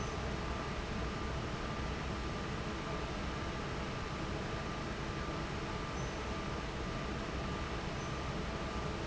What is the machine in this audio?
fan